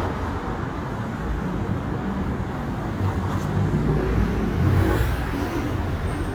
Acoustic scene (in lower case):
street